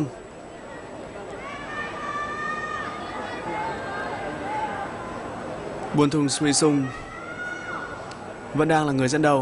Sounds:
speech, run, outside, urban or man-made

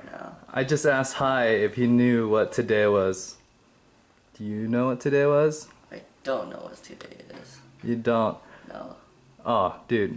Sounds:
speech

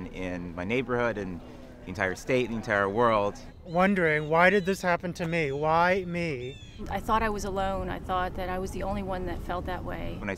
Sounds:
man speaking, speech

